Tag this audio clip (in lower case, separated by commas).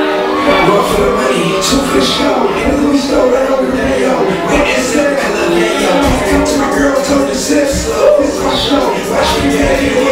music, speech